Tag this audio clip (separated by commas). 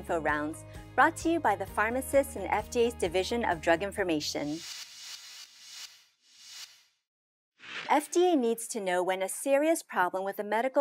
Speech